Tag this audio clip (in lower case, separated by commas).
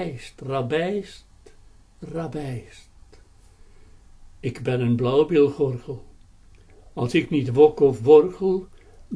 speech